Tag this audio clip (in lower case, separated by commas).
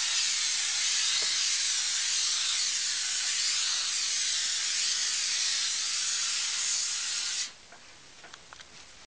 spray